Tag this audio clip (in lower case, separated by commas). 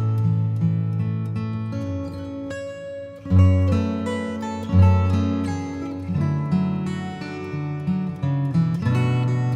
musical instrument, plucked string instrument, music, strum, acoustic guitar, guitar